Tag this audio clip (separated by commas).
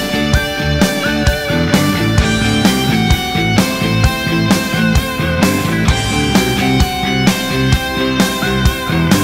Music, Drum kit, Musical instrument, Drum